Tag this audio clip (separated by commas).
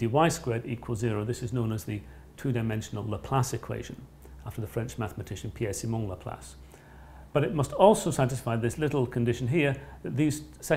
Speech